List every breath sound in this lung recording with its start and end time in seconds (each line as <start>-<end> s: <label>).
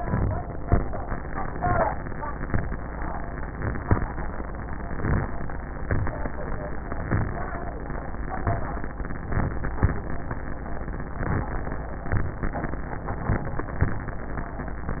0.00-0.61 s: inhalation
4.78-5.39 s: inhalation
5.84-6.45 s: exhalation
7.02-7.50 s: inhalation
8.35-8.82 s: exhalation